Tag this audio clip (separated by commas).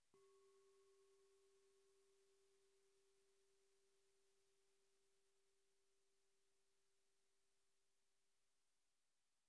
Music, Musical instrument